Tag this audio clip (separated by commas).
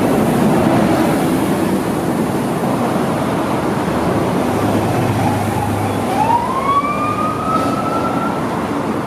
Ambulance (siren)